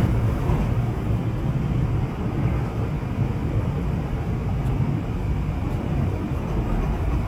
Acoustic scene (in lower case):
subway train